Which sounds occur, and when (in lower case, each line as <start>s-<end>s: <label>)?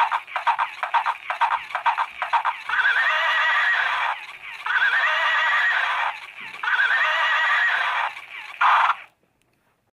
0.0s-0.2s: clip-clop
0.0s-9.1s: music
0.0s-9.9s: background noise
0.3s-0.6s: clip-clop
0.8s-1.1s: clip-clop
1.3s-1.6s: clip-clop
1.7s-2.0s: clip-clop
2.2s-2.5s: clip-clop
2.6s-4.2s: whinny
4.6s-6.1s: whinny
6.6s-8.1s: whinny